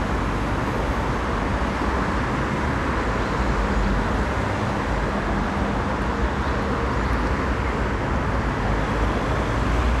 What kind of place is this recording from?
street